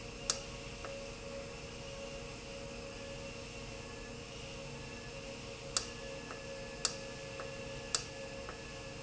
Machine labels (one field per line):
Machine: valve